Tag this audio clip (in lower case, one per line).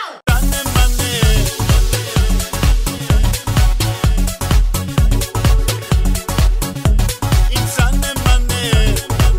music
house music